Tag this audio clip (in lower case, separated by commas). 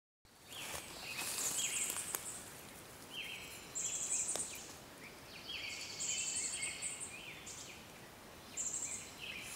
woodpecker pecking tree